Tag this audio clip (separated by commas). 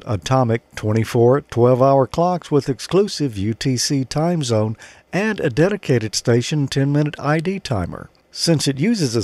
Speech